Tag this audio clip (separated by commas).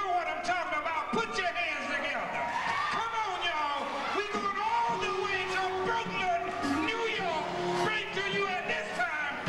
Music, Speech